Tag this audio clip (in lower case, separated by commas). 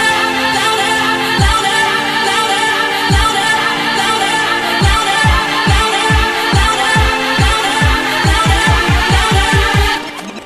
music, electronic music, dubstep